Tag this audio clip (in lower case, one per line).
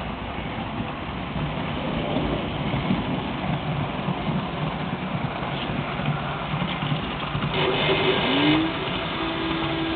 vehicle